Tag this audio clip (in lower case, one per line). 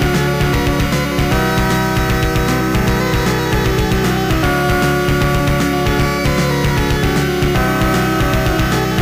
soundtrack music
music